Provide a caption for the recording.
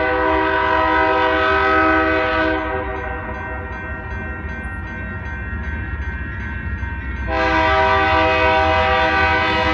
Train honking and bell ringing